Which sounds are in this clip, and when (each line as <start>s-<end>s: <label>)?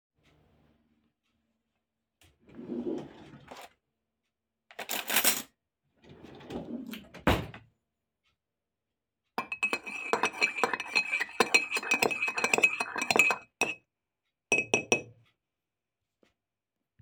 2.4s-3.8s: wardrobe or drawer
3.5s-3.7s: cutlery and dishes
4.7s-5.6s: cutlery and dishes
5.9s-7.7s: wardrobe or drawer
9.3s-13.9s: cutlery and dishes
14.5s-15.2s: cutlery and dishes